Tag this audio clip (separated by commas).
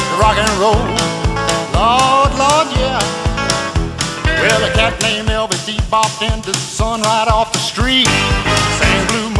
Rock and roll, Music